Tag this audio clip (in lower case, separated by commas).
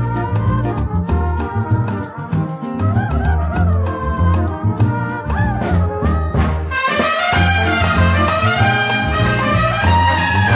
music, orchestra